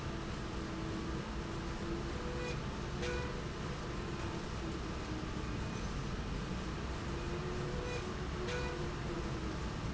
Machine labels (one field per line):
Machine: slide rail